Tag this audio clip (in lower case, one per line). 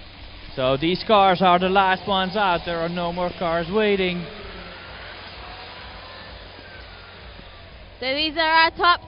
speech